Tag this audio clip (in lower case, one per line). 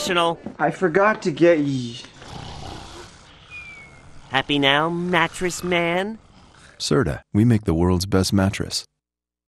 speech